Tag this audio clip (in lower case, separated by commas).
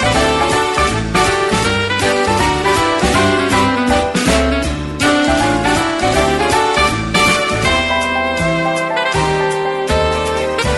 jingle (music), music